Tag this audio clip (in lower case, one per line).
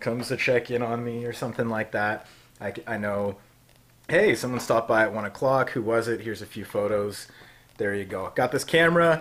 speech